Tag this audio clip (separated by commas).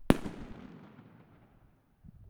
Explosion, Fireworks